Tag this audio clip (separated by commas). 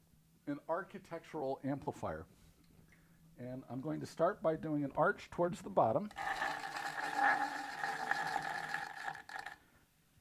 Speech